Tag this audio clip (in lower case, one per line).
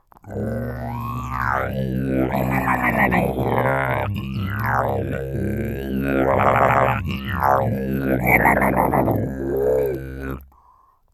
musical instrument
music